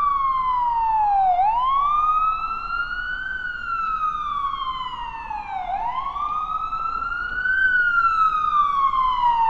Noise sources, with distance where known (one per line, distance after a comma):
siren, near